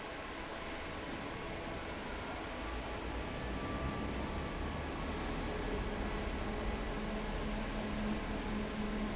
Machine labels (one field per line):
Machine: fan